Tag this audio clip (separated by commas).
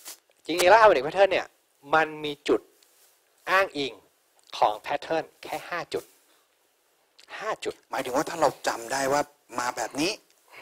Speech